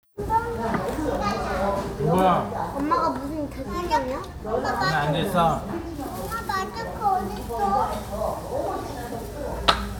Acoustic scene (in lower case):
restaurant